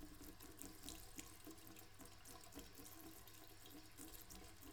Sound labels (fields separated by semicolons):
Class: water tap; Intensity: low